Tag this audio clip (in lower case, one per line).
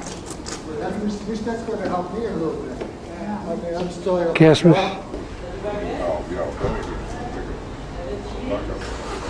speech
inside a large room or hall